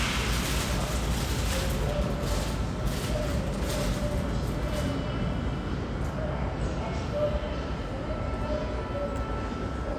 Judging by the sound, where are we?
in a subway station